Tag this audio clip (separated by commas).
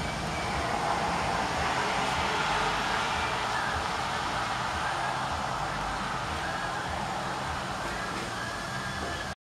outside, urban or man-made, Pigeon, Bird